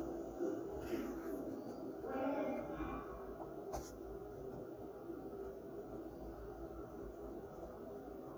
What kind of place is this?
elevator